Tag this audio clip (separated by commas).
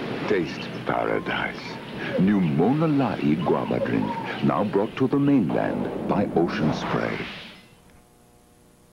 Speech